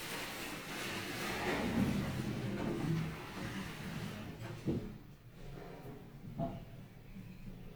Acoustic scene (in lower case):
elevator